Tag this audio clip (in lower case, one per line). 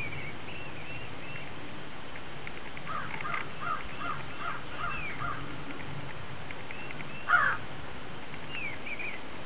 crow cawing
crow
caw
outside, rural or natural